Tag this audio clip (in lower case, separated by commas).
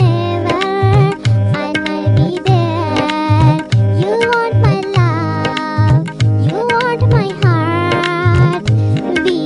music